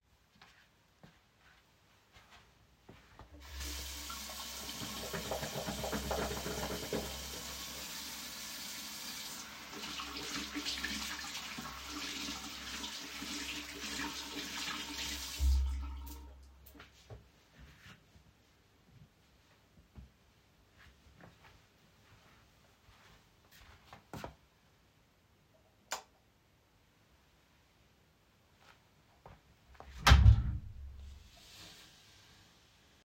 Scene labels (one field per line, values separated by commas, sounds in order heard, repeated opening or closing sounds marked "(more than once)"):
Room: bathroom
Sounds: footsteps, running water, light switch, door